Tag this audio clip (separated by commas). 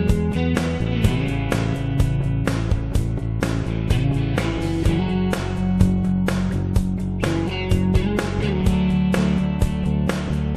Music